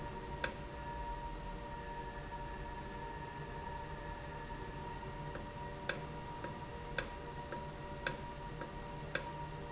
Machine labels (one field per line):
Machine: valve